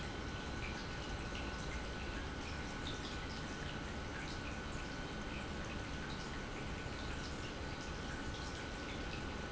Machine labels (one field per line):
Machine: pump